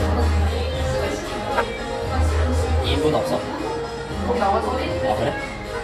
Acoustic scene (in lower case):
cafe